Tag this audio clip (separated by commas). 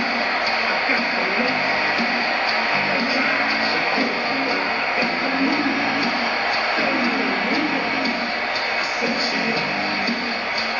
Music